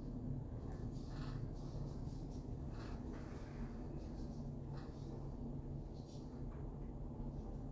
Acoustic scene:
elevator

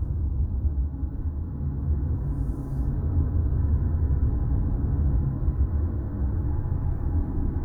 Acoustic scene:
car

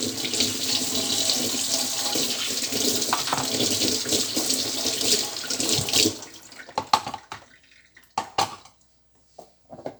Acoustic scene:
kitchen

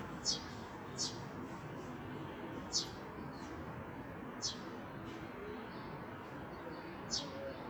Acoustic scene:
residential area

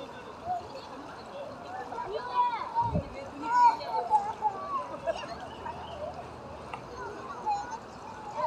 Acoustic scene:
park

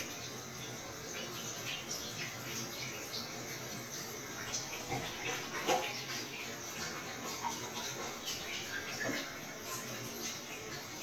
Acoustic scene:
restroom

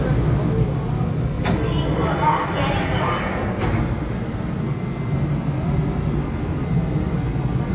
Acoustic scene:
subway train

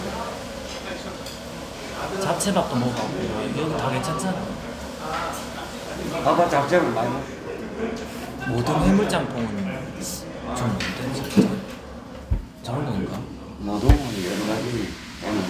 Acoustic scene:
restaurant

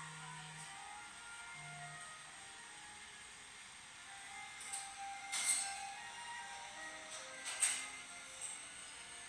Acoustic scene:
cafe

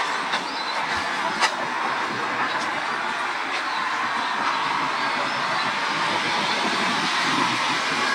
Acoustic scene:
park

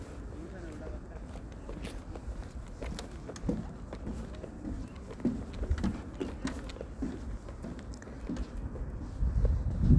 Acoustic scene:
park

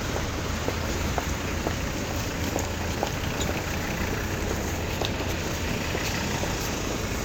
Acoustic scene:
street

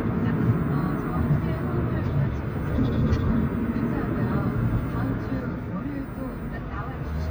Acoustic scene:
car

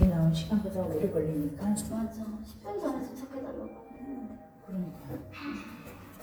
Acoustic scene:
elevator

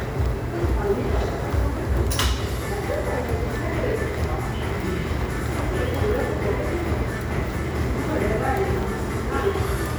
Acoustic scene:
crowded indoor space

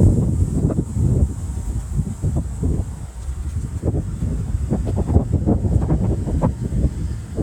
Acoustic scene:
residential area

